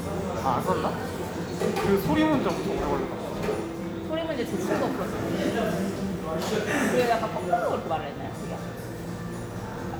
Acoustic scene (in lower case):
cafe